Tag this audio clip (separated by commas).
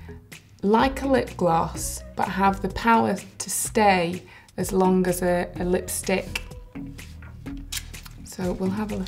Speech, Music